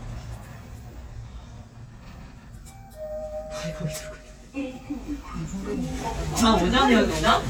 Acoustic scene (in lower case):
elevator